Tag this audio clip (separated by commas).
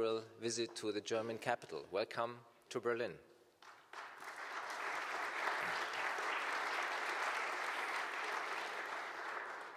man speaking, Narration, Speech